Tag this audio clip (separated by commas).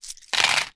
home sounds, Coin (dropping)